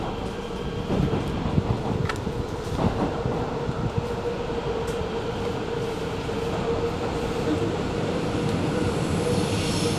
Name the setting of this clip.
subway train